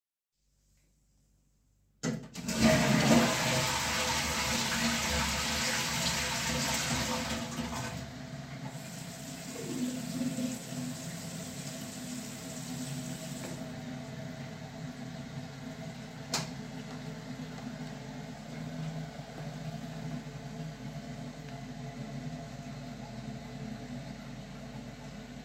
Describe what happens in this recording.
I flush the toilet, turn on the tap, turn the tap off, then turn the light off.